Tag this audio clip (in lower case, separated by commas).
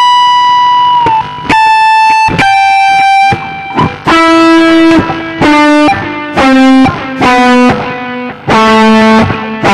plucked string instrument, inside a small room, guitar, musical instrument, music